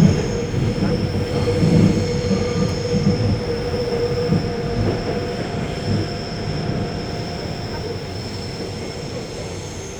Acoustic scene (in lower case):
subway train